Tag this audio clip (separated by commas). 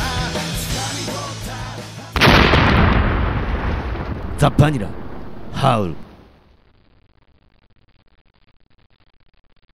Speech, Music